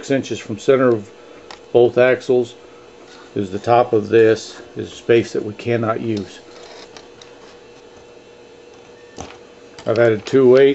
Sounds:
speech

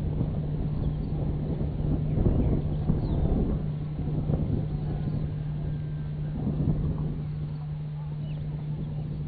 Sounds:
outside, rural or natural

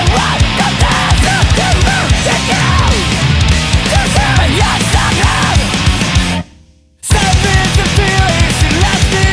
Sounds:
music

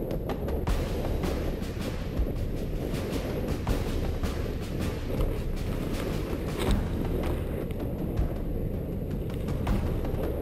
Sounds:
outside, rural or natural
music

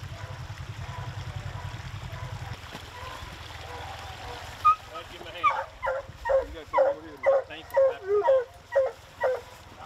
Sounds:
dog baying

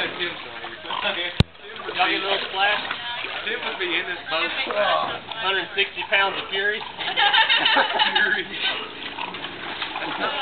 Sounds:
speech

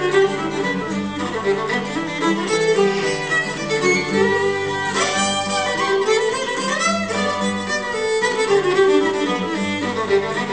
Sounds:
violin
music
musical instrument

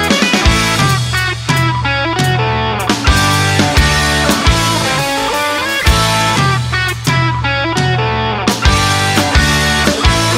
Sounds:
music
theme music

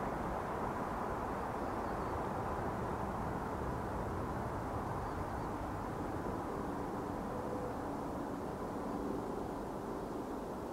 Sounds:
owl hooting

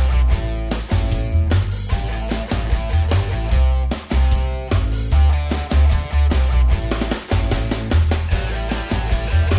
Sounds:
music

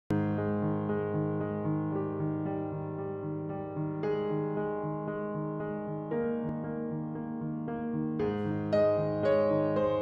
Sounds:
hair dryer drying

